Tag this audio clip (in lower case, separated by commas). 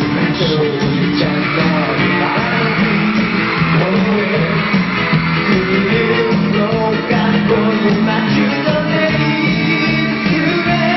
music